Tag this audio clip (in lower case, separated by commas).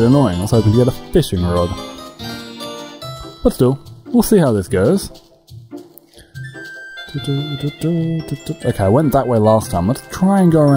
speech, music, outside, rural or natural